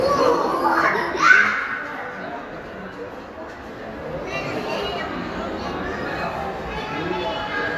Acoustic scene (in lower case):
crowded indoor space